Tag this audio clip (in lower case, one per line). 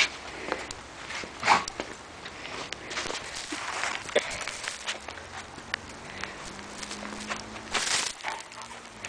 domestic animals
dog
animal
whimper (dog)